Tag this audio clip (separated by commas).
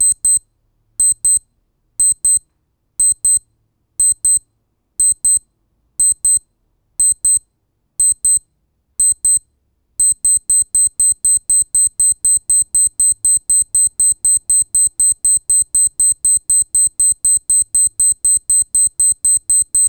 Alarm